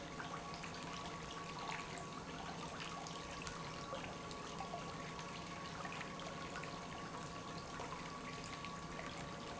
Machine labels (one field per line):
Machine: pump